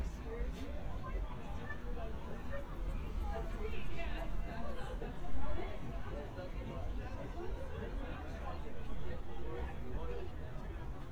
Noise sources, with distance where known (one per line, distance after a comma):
person or small group talking, far